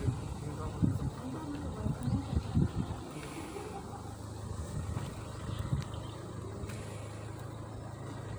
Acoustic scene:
residential area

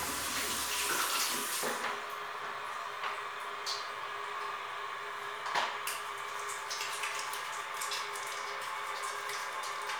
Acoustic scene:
restroom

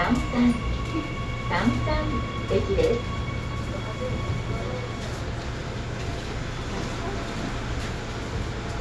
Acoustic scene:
subway train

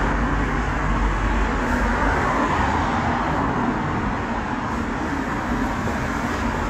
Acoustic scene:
street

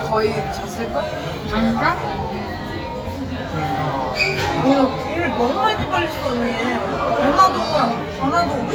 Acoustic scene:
crowded indoor space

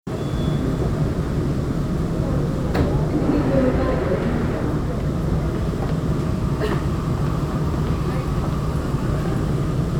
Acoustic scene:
subway train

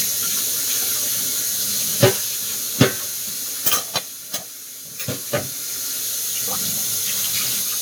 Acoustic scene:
kitchen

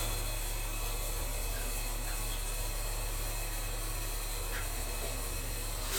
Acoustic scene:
restroom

